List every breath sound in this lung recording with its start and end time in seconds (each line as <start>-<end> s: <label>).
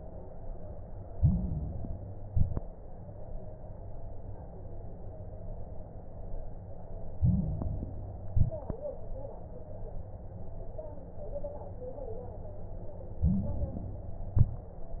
1.04-2.22 s: inhalation
1.04-2.22 s: crackles
2.24-2.67 s: exhalation
2.24-2.67 s: crackles
7.12-8.30 s: inhalation
7.12-8.30 s: crackles
8.30-8.73 s: exhalation
8.30-8.73 s: crackles
13.21-14.33 s: inhalation
13.21-14.33 s: crackles
14.35-14.77 s: exhalation
14.35-14.77 s: crackles